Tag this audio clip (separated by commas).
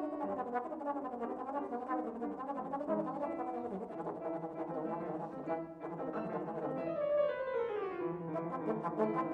Music, Brass instrument